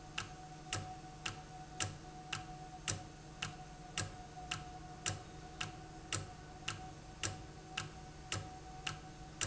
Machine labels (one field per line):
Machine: valve